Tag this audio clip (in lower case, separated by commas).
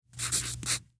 domestic sounds, writing